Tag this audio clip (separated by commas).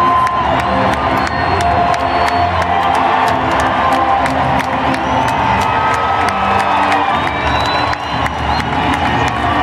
Music